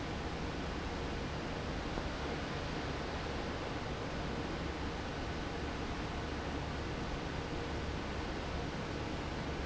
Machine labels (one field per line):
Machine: fan